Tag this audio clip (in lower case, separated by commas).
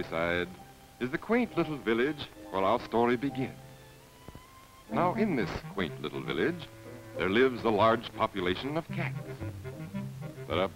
speech